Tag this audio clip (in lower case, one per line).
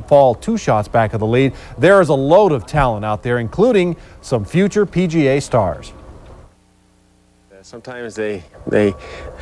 speech